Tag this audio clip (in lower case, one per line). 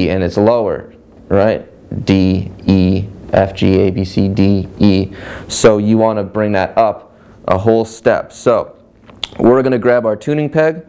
speech